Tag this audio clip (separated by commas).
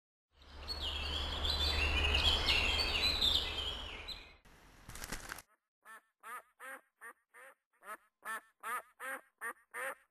bird call, outside, rural or natural